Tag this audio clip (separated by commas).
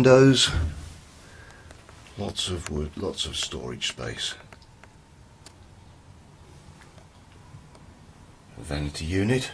Speech